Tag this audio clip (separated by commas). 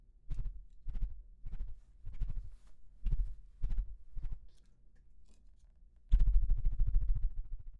Wild animals, Insect, Animal